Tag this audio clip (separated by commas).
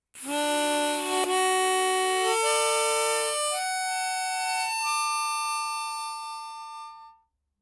Musical instrument, Harmonica, Music